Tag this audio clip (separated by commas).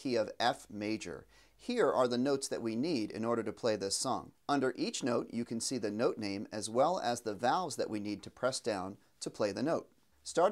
Speech